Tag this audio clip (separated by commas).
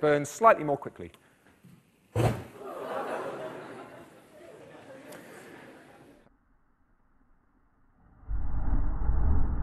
Speech